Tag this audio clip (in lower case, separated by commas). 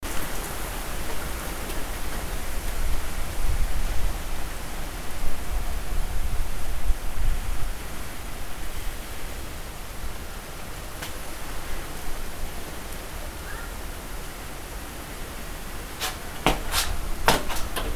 wind